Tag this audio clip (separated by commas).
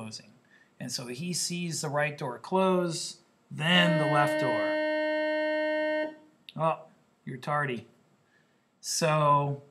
inside a small room, Speech